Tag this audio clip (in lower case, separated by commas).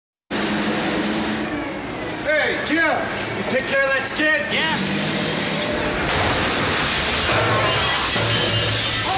engine, speech